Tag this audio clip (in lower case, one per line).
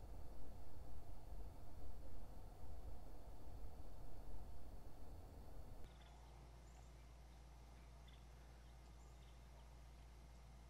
silence